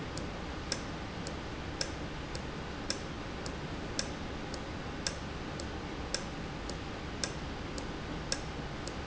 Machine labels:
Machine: valve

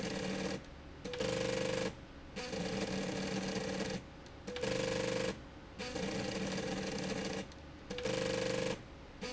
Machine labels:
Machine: slide rail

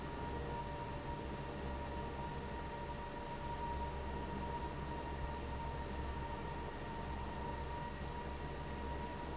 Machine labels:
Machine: fan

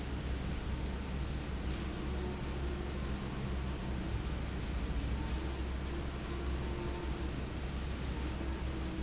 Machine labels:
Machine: fan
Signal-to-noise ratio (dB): -6 dB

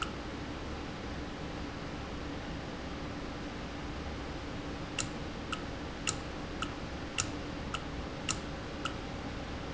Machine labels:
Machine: valve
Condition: normal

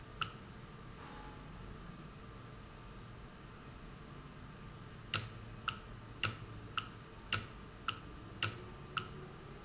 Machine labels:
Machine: valve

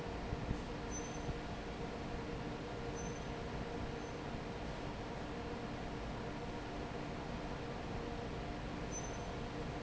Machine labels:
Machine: fan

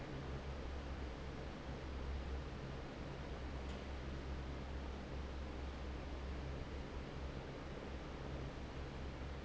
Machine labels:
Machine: fan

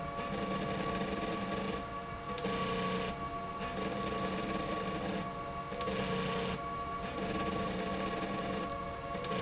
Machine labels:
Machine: slide rail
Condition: abnormal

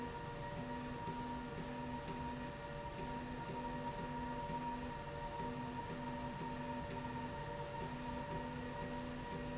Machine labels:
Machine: slide rail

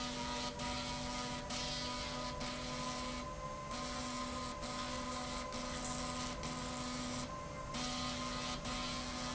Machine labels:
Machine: slide rail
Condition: abnormal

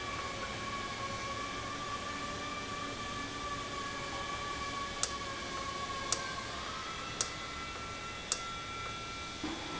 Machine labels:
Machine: valve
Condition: normal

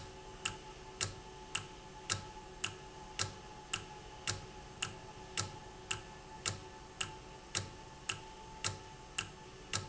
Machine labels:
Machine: valve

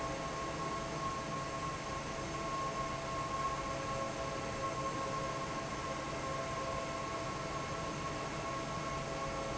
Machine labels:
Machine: fan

